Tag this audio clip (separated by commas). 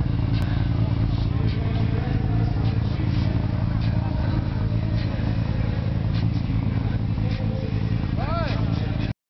Car, Speech, Vehicle